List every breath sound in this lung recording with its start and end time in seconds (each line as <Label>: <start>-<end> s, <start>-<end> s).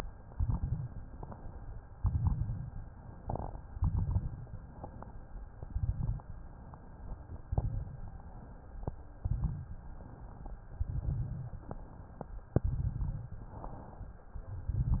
Inhalation: 0.10-0.93 s, 1.95-2.78 s, 3.69-4.53 s, 5.54-6.37 s, 7.42-8.25 s, 9.19-10.02 s, 10.78-11.61 s, 12.62-13.46 s, 14.51-15.00 s
Exhalation: 1.02-1.91 s, 2.83-3.62 s, 4.58-5.37 s, 6.46-7.35 s, 8.30-9.16 s, 10.07-10.70 s, 11.64-12.54 s, 13.51-14.40 s
Crackles: 0.10-0.93 s, 1.95-2.78 s, 3.69-4.53 s, 5.54-6.37 s, 7.42-8.25 s, 9.19-10.02 s, 10.78-11.61 s, 12.62-13.46 s, 14.51-15.00 s